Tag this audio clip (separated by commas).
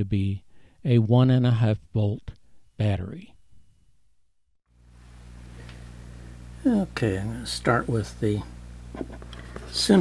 Speech